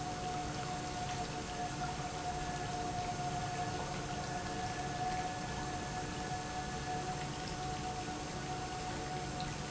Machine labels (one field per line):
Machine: pump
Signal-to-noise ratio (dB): -6 dB